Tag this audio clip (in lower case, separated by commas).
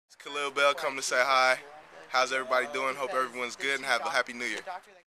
speech